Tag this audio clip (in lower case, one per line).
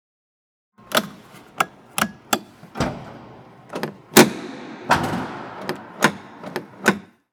car
motor vehicle (road)
vehicle